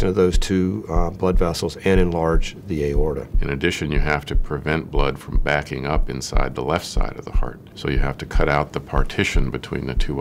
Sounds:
speech

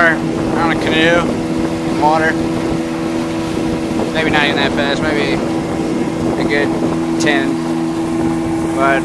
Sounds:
speech
vehicle
boat

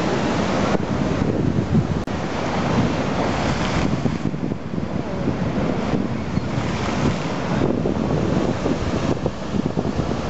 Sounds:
outside, rural or natural

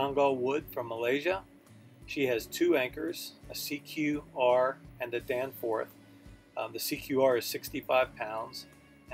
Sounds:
speech
music

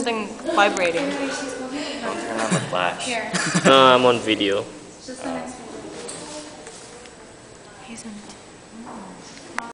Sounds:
speech

